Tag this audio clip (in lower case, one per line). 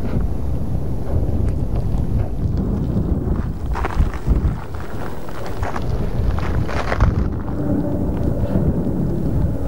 volcano explosion